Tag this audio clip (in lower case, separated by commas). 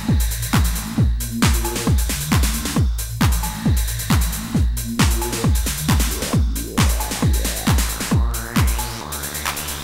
music